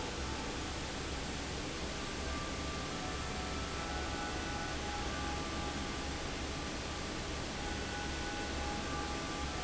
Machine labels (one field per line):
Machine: fan